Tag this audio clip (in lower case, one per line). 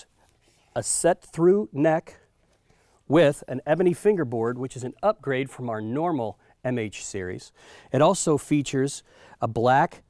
speech